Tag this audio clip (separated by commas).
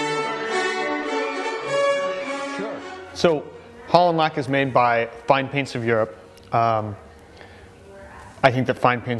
Music, Speech